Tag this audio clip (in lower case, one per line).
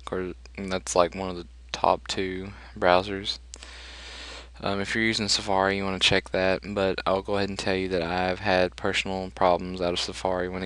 speech